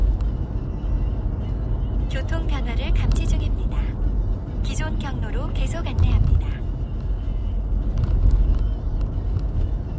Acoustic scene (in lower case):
car